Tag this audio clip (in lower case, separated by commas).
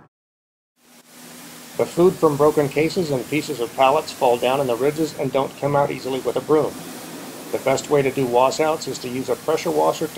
speech